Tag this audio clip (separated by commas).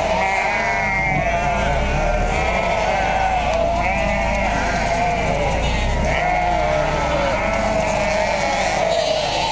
Bleat, Sheep